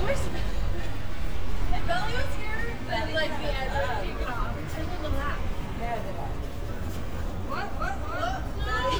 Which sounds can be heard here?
person or small group talking